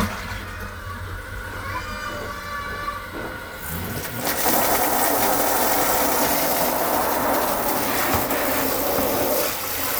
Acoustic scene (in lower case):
restroom